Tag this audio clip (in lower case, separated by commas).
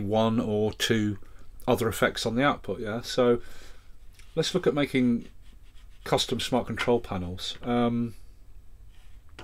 speech